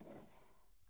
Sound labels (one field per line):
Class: drawer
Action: opening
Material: wooden